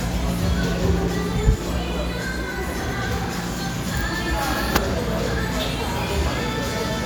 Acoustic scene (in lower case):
cafe